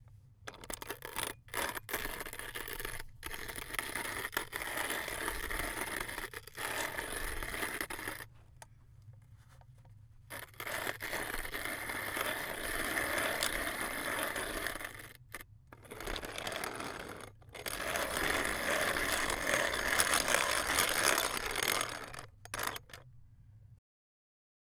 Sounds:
Mechanisms

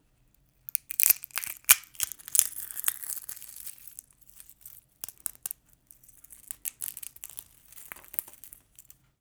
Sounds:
Crackle

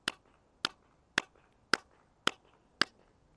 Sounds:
Squeak, Clapping, Hands

